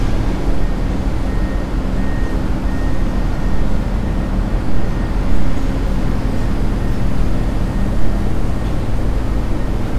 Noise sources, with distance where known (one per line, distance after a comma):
reverse beeper